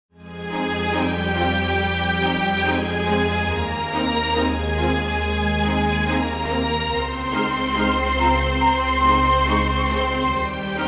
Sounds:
music, sad music

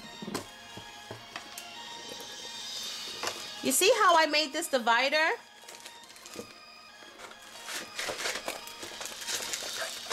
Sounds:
music, inside a small room, speech

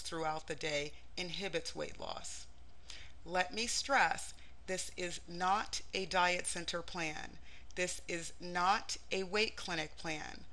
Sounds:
speech

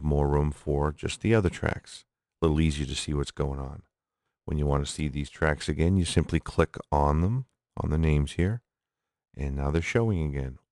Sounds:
speech

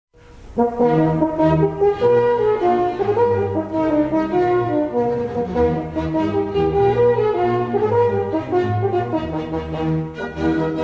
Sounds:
music, brass instrument

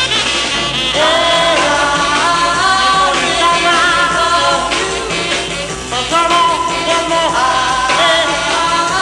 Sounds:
singing, music

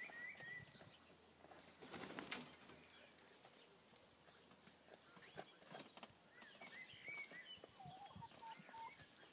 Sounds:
outside, rural or natural, turkey, bird

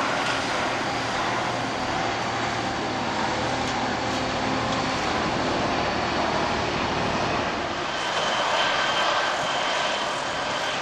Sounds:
vehicle, aircraft

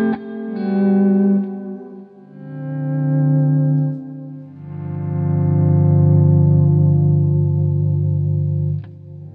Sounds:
distortion, plucked string instrument, effects unit, musical instrument, guitar, music

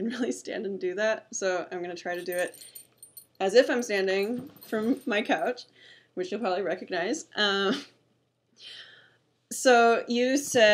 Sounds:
speech

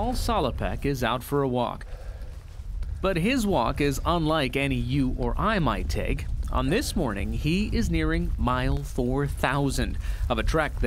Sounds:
speech, walk

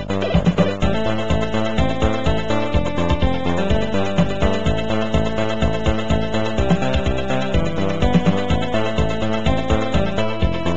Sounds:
soundtrack music, music, exciting music, video game music

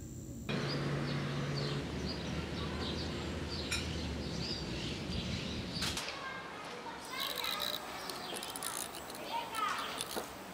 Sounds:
bird, bird vocalization, chirp

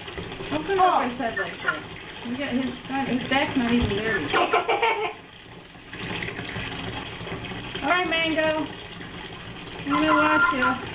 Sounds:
rooster, fowl, cluck

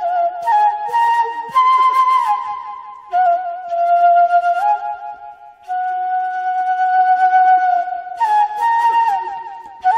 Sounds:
flute, woodwind instrument, playing flute

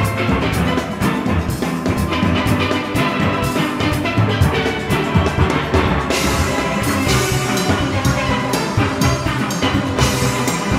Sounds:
steelpan, music

